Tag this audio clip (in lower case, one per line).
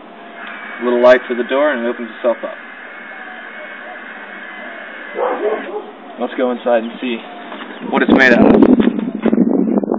speech